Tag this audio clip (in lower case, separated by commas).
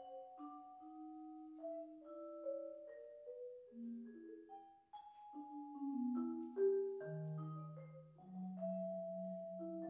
vibraphone, music